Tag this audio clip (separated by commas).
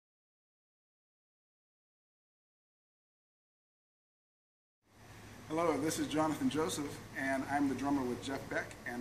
Speech